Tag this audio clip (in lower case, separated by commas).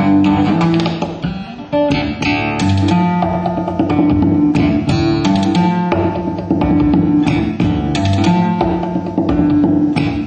guitar, plucked string instrument, musical instrument, music